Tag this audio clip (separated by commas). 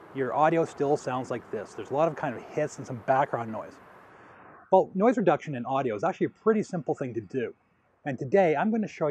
Speech